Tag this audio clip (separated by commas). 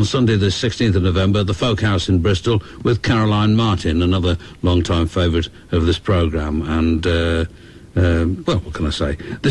Speech